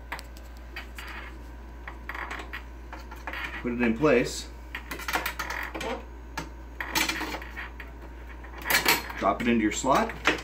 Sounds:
speech

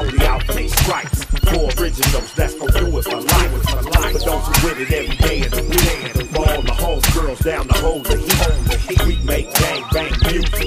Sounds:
music

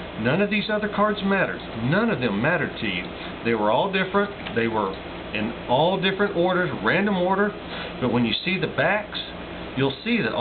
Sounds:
speech

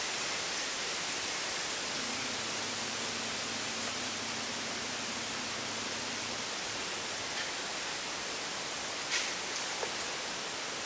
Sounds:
wind rustling leaves

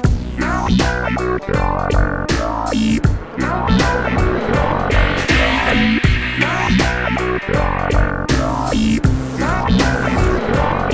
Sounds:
music
trance music

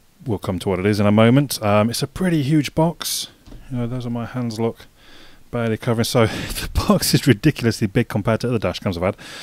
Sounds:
speech

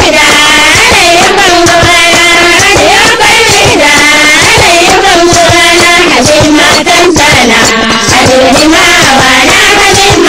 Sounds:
music

